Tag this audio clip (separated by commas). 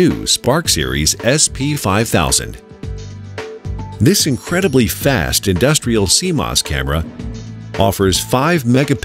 Speech, Music